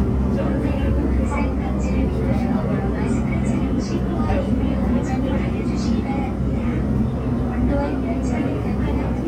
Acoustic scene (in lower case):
subway train